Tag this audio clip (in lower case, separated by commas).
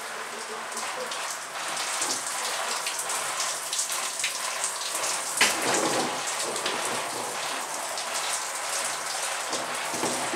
bathtub (filling or washing)